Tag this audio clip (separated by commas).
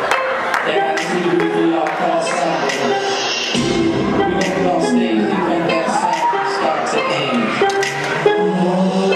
Music